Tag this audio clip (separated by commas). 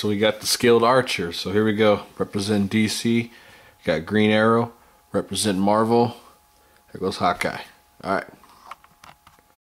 Speech